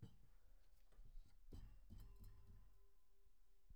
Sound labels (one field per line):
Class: cupboard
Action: opening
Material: wooden